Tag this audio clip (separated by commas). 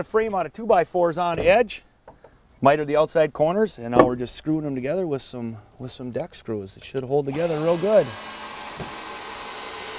Speech, Wood